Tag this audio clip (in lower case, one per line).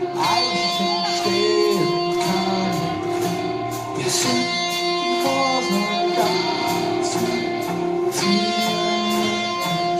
music